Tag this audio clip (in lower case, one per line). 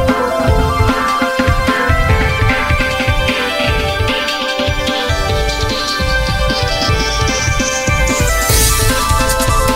music
blues
exciting music
rhythm and blues